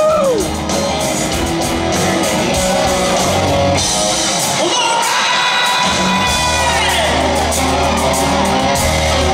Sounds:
Rock and roll, Music

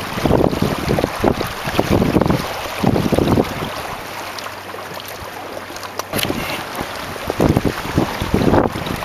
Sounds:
Wind, Wind noise (microphone)

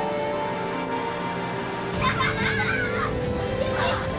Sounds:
Speech, Music

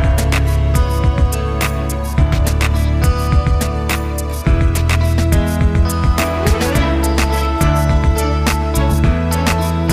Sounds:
Music

